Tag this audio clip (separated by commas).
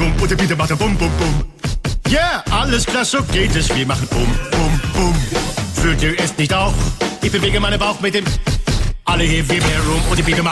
Music